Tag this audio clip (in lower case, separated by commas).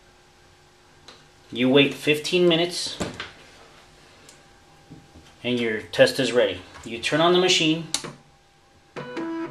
inside a small room, speech